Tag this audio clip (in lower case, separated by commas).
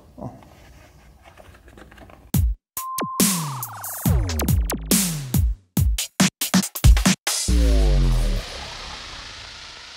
drum machine, music